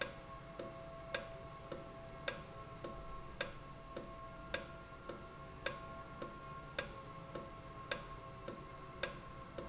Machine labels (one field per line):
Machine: valve